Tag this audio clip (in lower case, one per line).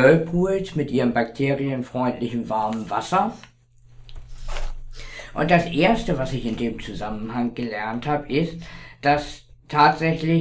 speech